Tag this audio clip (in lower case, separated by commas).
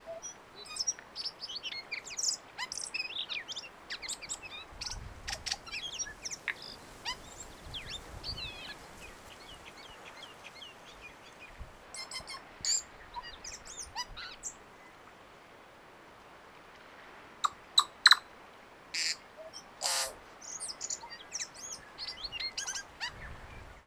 bird vocalization, animal, bird, wild animals